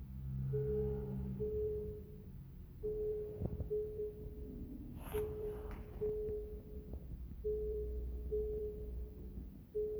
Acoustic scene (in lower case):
elevator